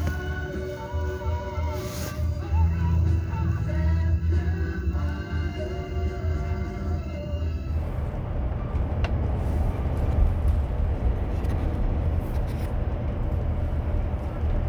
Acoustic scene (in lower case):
car